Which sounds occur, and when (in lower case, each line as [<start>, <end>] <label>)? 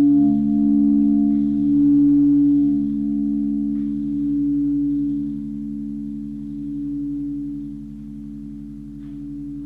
[0.00, 9.65] church bell
[8.97, 9.14] tick